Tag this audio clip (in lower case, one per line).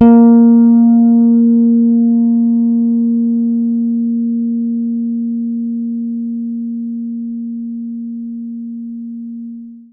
guitar
musical instrument
music
bass guitar
plucked string instrument